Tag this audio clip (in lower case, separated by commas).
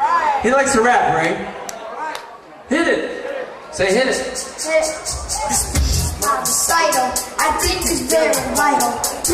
speech, dance music, music